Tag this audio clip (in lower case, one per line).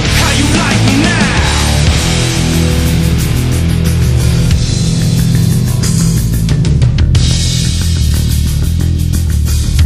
music
inside a large room or hall